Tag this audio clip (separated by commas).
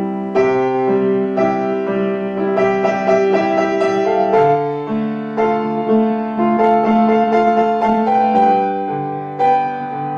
Music